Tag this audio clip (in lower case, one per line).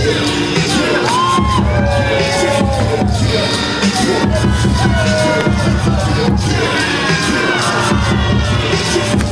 speech
music